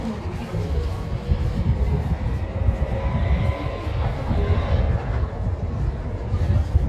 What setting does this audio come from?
residential area